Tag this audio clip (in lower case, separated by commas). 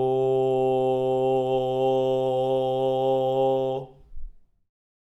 human voice, singing